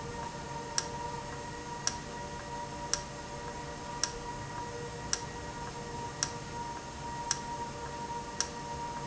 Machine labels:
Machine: valve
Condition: normal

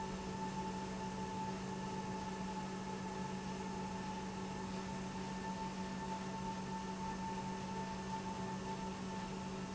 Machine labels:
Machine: pump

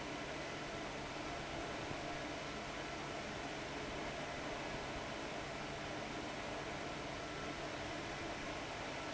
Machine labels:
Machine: fan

